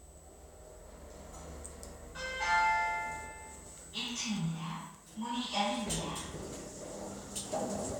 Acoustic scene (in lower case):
elevator